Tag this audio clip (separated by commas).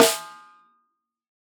Percussion, Music, Musical instrument, Snare drum, Drum